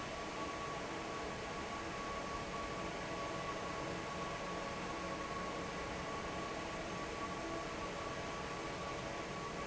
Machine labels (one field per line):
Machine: fan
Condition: normal